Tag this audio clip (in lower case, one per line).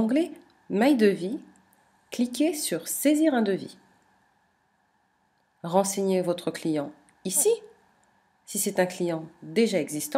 speech